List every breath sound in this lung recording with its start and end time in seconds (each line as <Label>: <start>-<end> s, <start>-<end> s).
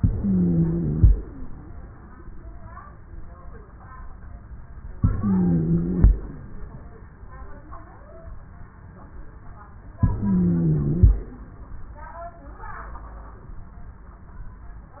Inhalation: 0.00-1.12 s, 5.00-6.12 s, 10.03-11.15 s
Wheeze: 0.00-1.12 s, 5.00-6.12 s, 10.03-11.15 s